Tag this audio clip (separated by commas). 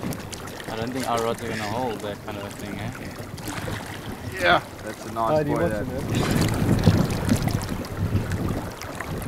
Speech